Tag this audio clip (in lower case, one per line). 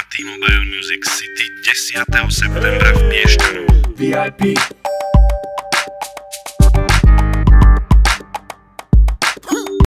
music